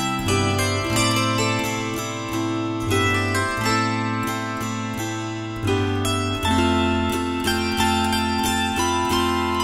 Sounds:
playing zither

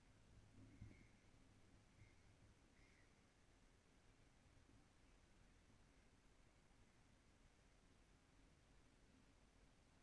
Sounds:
Silence

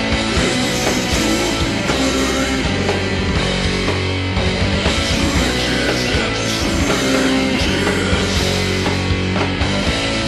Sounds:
Heavy metal, Punk rock, Rock music, Music

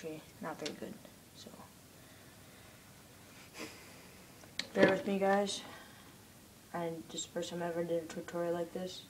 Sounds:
Speech

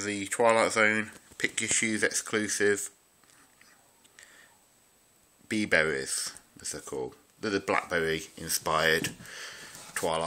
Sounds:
Speech

